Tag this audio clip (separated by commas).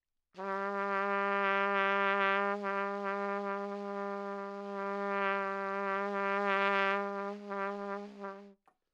Brass instrument, Trumpet, Music, Musical instrument